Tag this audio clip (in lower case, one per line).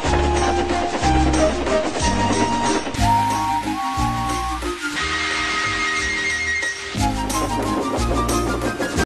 music